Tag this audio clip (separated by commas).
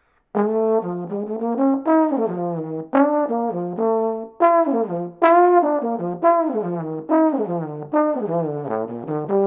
playing trombone